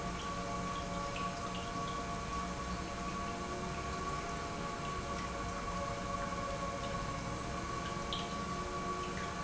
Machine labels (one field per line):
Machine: pump